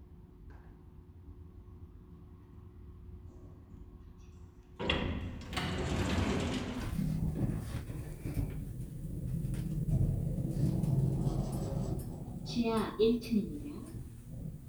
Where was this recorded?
in an elevator